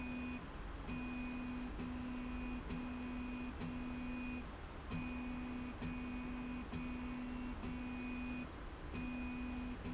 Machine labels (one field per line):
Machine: slide rail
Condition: normal